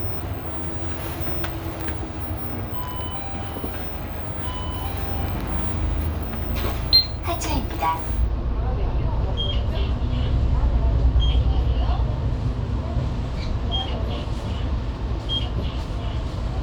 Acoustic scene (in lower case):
bus